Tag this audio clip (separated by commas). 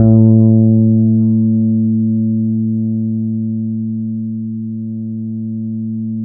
Guitar, Music, Bass guitar, Plucked string instrument, Musical instrument